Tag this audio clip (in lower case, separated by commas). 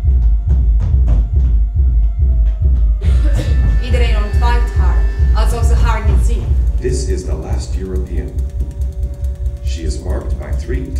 speech